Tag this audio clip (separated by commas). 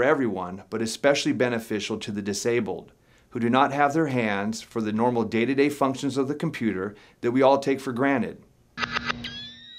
Speech